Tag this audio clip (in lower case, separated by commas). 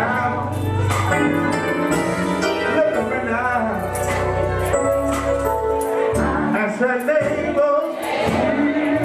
male singing, music, choir